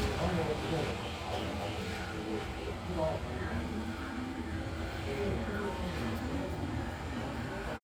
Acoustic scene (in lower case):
crowded indoor space